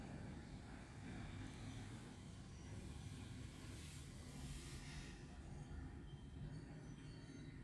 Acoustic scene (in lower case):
street